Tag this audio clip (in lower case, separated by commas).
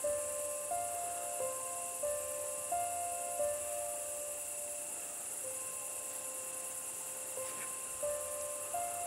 music